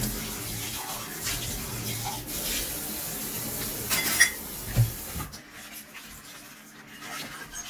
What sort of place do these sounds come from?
kitchen